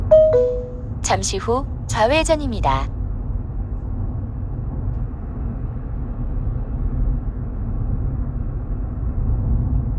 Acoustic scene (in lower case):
car